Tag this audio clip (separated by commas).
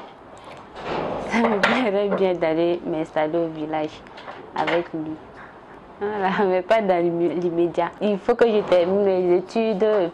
Speech